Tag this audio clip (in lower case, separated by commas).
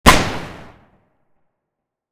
gunfire, explosion